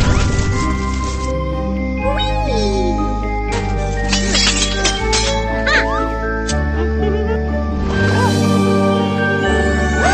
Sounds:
music, music for children

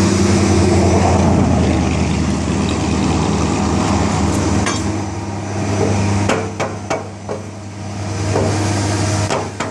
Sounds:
hammer

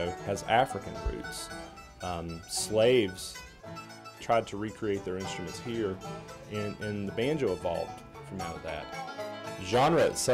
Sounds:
speech, bluegrass, music

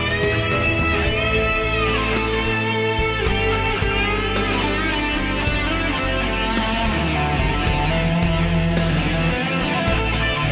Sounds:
playing bass guitar, musical instrument, plucked string instrument, guitar, music, strum, bass guitar

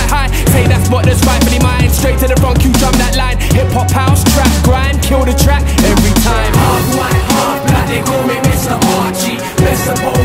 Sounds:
music

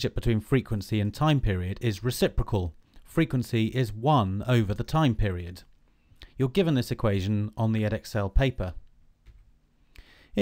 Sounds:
speech

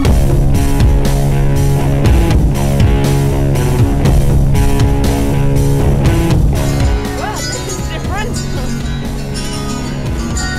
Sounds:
music, speech, rock music

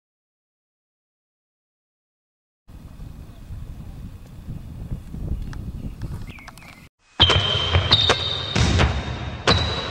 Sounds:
basketball bounce

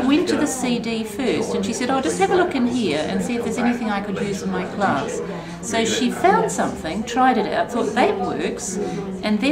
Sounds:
conversation, speech

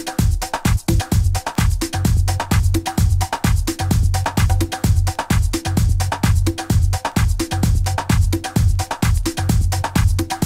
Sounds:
music, disco

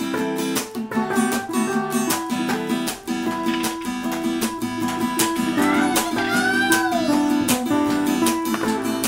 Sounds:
ukulele, speech, music

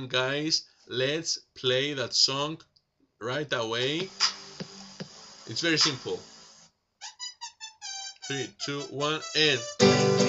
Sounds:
plucked string instrument, musical instrument, music, strum, guitar, acoustic guitar, speech

